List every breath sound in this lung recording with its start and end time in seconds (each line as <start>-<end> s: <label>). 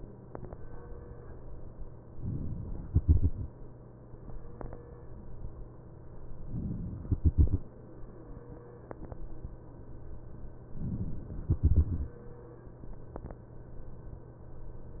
2.87-3.40 s: exhalation
2.87-3.40 s: crackles
7.00-7.65 s: exhalation
7.00-7.65 s: crackles
11.23-12.15 s: exhalation
11.23-12.15 s: crackles